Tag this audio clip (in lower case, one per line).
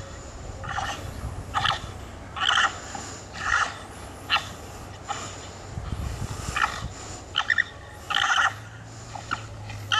animal